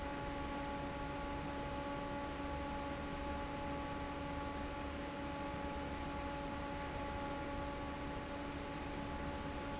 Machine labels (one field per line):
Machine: fan